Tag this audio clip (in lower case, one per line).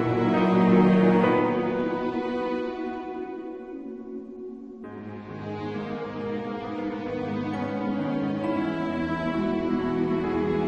music